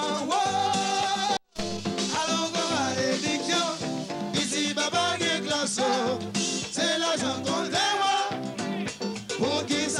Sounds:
Music, Ska

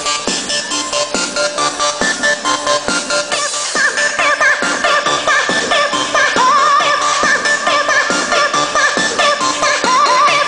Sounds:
Music

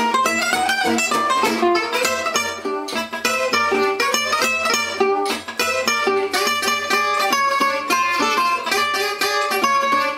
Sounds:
Musical instrument, Guitar, Music

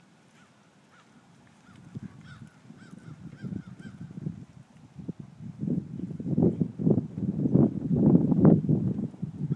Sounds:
Clip-clop, Horse, Animal

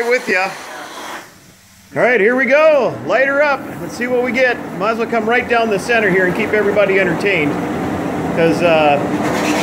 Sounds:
Speech

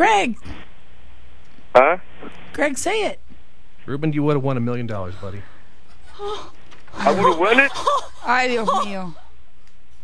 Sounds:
Laughter, Speech

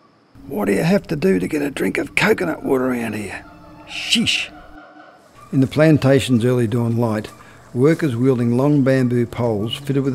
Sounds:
Speech

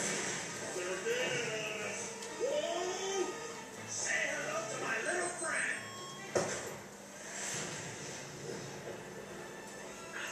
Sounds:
Music, Speech

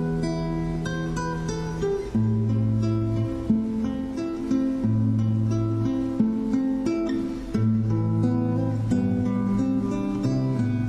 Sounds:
Guitar, Music, Plucked string instrument, Musical instrument, Strum

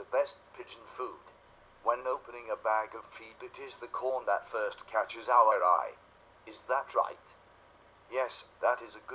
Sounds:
Speech

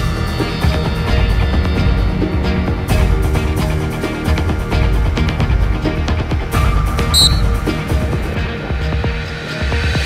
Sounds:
Music

